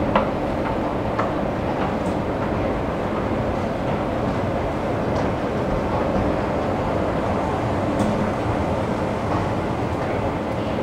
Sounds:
underground

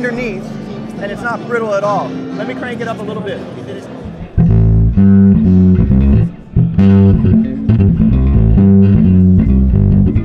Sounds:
musical instrument
guitar
plucked string instrument
bass guitar
speech
music

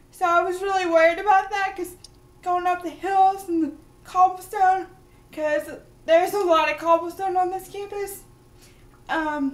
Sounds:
speech

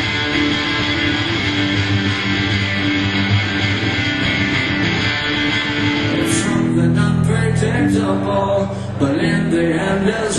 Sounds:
singing
vocal music

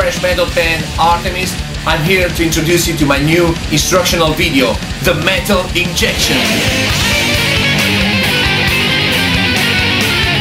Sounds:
strum
plucked string instrument
speech
guitar
music
musical instrument
electric guitar

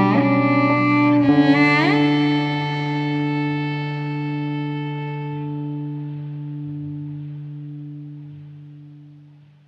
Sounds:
distortion

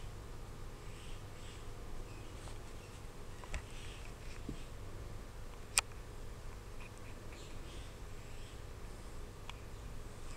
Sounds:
inside a small room

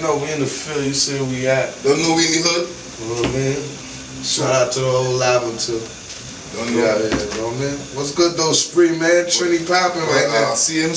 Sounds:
speech

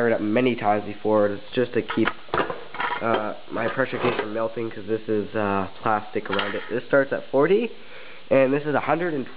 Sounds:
speech

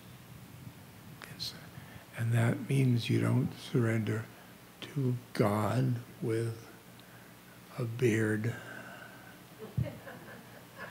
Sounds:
speech

